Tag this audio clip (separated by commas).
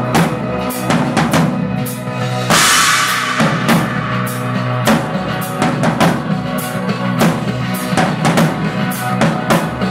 Drum, Drum kit, Music, playing drum kit, Musical instrument